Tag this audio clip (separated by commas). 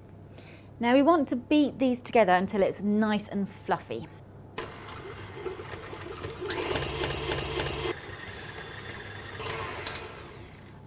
inside a small room, Speech